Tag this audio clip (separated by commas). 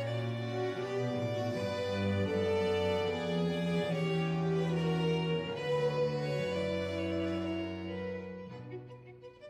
Music